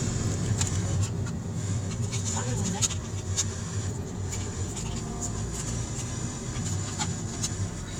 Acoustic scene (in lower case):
car